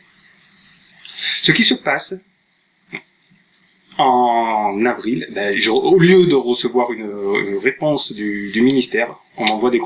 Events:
0.0s-9.8s: background noise
1.0s-1.4s: breathing
1.4s-2.2s: man speaking
2.9s-3.0s: generic impact sounds
3.3s-3.3s: generic impact sounds
3.9s-9.1s: man speaking
9.3s-9.8s: man speaking
9.4s-9.5s: tick

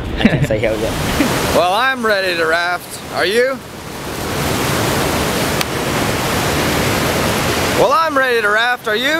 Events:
0.0s-9.1s: stream
0.0s-0.8s: laughter
1.5s-2.8s: man speaking
3.1s-3.6s: man speaking
7.8s-8.8s: man speaking
8.8s-9.1s: man speaking

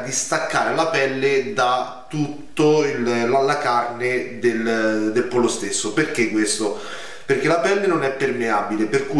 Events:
0.0s-6.7s: male speech
0.0s-9.1s: background noise
7.2s-9.1s: male speech

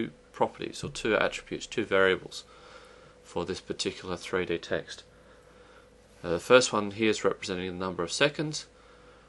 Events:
0.0s-0.2s: male speech
0.0s-9.2s: mechanisms
0.4s-2.5s: male speech
2.5s-3.2s: breathing
3.3s-5.1s: male speech
5.1s-5.9s: breathing
6.3s-8.7s: male speech
8.7s-9.2s: breathing

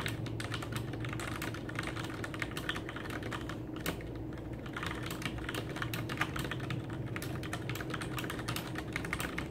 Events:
0.0s-0.2s: computer keyboard
0.0s-9.5s: mechanisms
0.4s-2.7s: computer keyboard
2.8s-3.6s: computer keyboard
3.7s-4.2s: computer keyboard
4.3s-5.2s: computer keyboard
5.4s-7.0s: computer keyboard
7.1s-8.4s: computer keyboard
8.5s-9.4s: computer keyboard

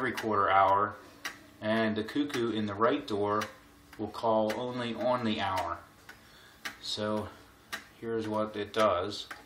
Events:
0.0s-1.0s: male speech
0.0s-9.4s: mechanisms
0.1s-0.2s: tick
0.6s-0.7s: tick
1.2s-1.3s: tick
1.6s-3.5s: male speech
2.0s-2.1s: tick
2.3s-2.4s: tick
3.4s-3.5s: tick
3.9s-4.0s: tick
4.0s-5.8s: male speech
4.5s-4.6s: tick
5.0s-5.1s: tick
5.5s-5.6s: tick
6.1s-6.2s: tick
6.2s-6.7s: breathing
6.6s-6.7s: tick
6.8s-7.3s: male speech
7.1s-7.2s: tick
7.7s-7.8s: tick
8.0s-9.3s: male speech
8.2s-8.3s: tick
8.7s-8.8s: tick
9.3s-9.4s: tick

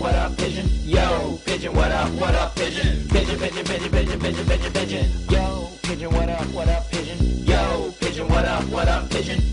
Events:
0.0s-9.5s: music
0.0s-9.5s: rapping

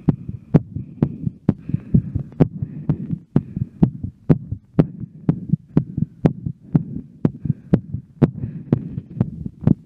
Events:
0.0s-9.8s: background noise
0.0s-0.6s: breathing
0.1s-0.3s: heartbeat
0.6s-0.8s: heartbeat
0.8s-1.3s: breathing
1.0s-1.3s: heartbeat
1.5s-2.5s: breathing
1.5s-1.8s: heartbeat
1.9s-2.3s: heartbeat
2.4s-2.7s: heartbeat
2.6s-3.2s: breathing
2.9s-3.2s: heartbeat
3.4s-3.8s: breathing
3.4s-3.7s: heartbeat
3.8s-4.1s: heartbeat
4.3s-4.6s: heartbeat
4.8s-5.1s: heartbeat
4.8s-6.3s: breathing
5.3s-5.6s: heartbeat
5.8s-6.1s: heartbeat
6.3s-6.5s: heartbeat
6.7s-7.1s: breathing
6.8s-7.1s: heartbeat
7.3s-7.6s: heartbeat
7.4s-7.8s: breathing
7.7s-8.0s: heartbeat
8.2s-8.5s: heartbeat
8.4s-9.2s: breathing
8.7s-9.0s: heartbeat
9.2s-9.5s: heartbeat
9.6s-9.8s: heartbeat

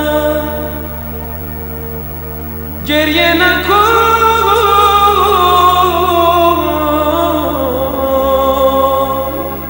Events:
0.0s-9.6s: music
2.9s-9.6s: male singing

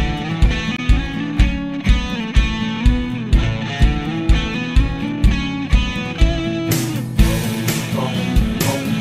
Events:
0.0s-9.0s: music
7.2s-9.0s: male singing

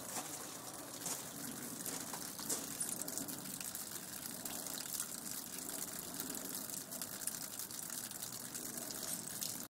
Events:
0.0s-9.6s: rain on surface
2.3s-2.7s: walk

